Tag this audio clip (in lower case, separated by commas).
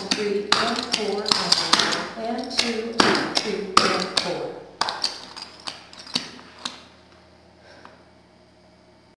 speech